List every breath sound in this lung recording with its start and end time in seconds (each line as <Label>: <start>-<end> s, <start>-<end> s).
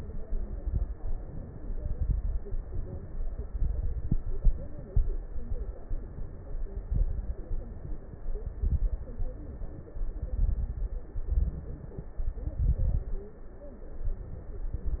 Inhalation: 0.98-1.75 s, 2.49-3.42 s, 5.85-6.78 s, 7.58-8.36 s, 9.16-9.94 s, 11.21-12.10 s, 14.10-14.88 s
Exhalation: 0.21-0.97 s, 1.75-2.39 s, 3.48-4.27 s, 6.91-7.52 s, 8.42-9.03 s, 10.18-11.08 s, 12.23-13.13 s
Crackles: 0.21-0.97 s, 1.75-2.39 s, 3.48-4.27 s, 6.91-7.52 s, 8.42-9.03 s, 10.18-11.08 s, 11.21-12.10 s, 12.23-13.13 s